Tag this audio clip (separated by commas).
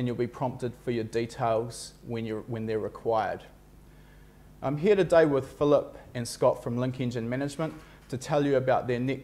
Speech